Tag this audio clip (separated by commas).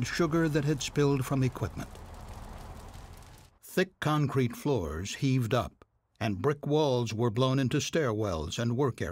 Speech